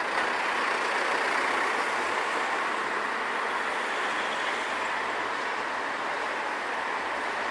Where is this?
on a street